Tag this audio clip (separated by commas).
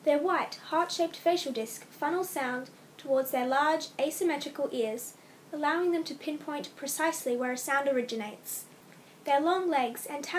Speech